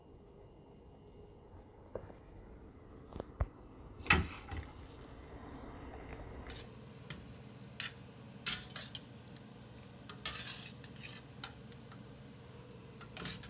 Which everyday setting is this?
kitchen